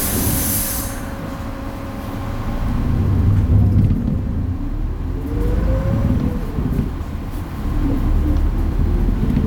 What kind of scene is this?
bus